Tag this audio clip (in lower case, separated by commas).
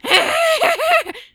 laughter, human voice